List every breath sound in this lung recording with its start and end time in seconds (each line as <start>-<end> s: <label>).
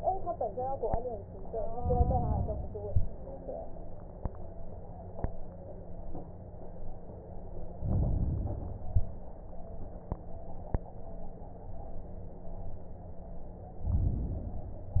1.69-2.69 s: inhalation
7.77-8.99 s: inhalation
13.83-15.00 s: inhalation